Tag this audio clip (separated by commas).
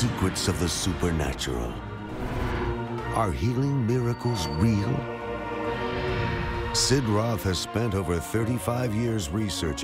Music, Speech